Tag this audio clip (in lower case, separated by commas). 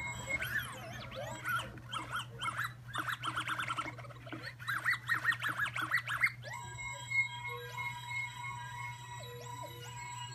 music, scratching (performance technique)